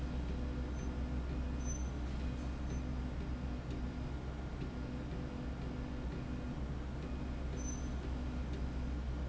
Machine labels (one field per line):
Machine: slide rail